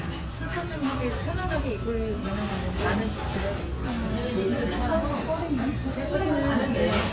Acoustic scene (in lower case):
restaurant